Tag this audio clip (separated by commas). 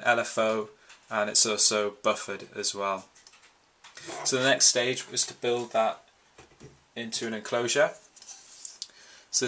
Speech